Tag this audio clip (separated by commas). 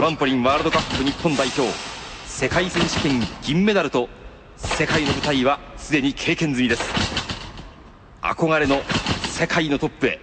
Speech